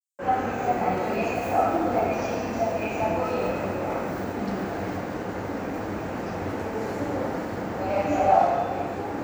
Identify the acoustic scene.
subway station